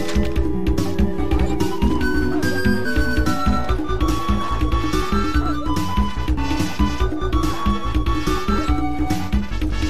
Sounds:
Yip, pets, Music, Animal

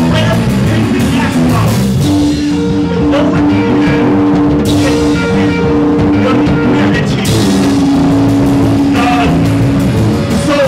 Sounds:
Rock music, Punk rock, Music

